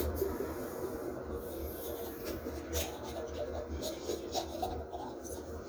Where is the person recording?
in a restroom